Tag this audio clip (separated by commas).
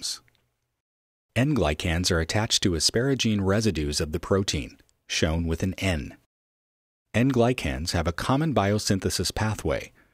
Speech